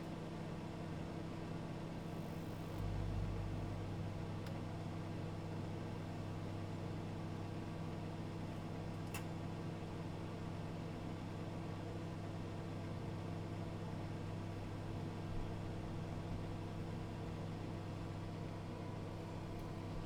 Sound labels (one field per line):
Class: microwave oven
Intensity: low